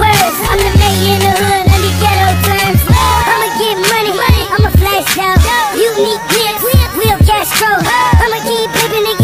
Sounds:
Music

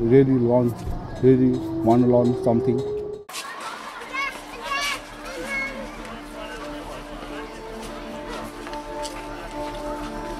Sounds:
outside, urban or man-made, Speech, Music

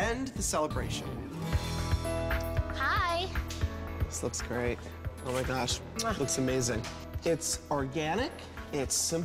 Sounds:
Speech, Music

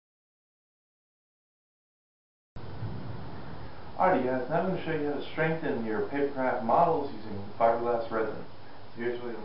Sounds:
Speech

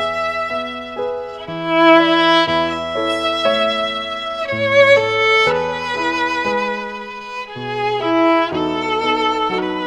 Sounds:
Musical instrument, Violin, Music

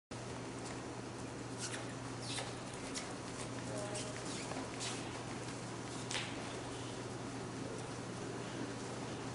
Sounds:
Animal

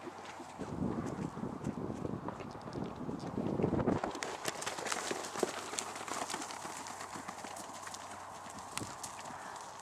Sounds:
horse neighing

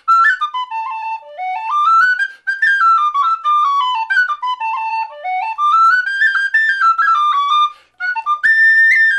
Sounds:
Music

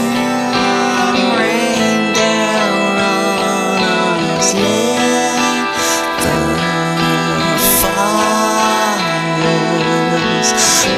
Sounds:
Music

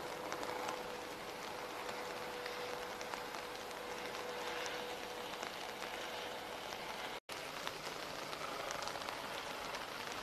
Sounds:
Rain on surface

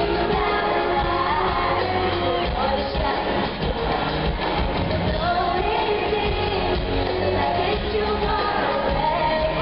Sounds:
Music, Female singing

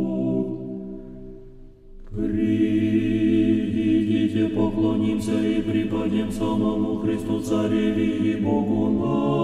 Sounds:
Music, Mantra

